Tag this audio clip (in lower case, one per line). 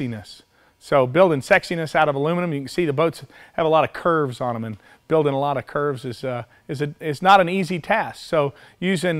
speech